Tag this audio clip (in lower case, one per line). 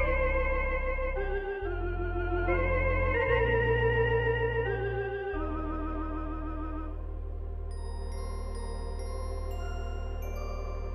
playing electronic organ